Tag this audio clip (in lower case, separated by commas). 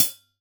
hi-hat, percussion, cymbal, musical instrument, music